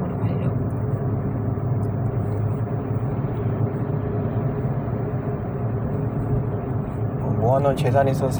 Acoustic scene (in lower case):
car